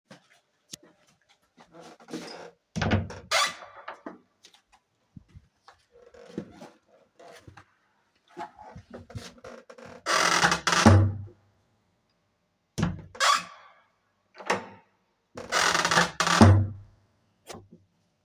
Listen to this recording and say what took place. I walked to the living room door, opened it, passed through, walked around, and closed it behind me.